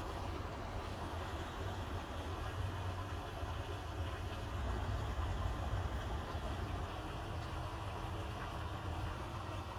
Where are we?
in a park